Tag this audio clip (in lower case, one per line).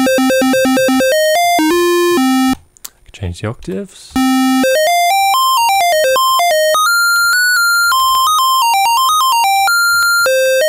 music
speech
computer keyboard
electronic music